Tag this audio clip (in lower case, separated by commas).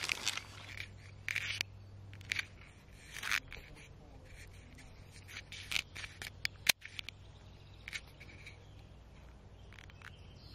animal